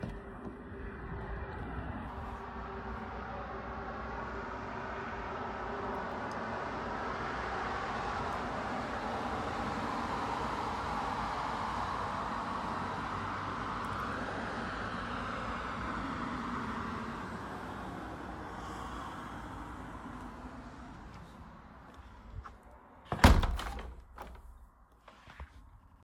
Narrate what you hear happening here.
I opened the window in the living room while a vehicle passed by outside with wind blowing. I then turned on the light switch and closed the window.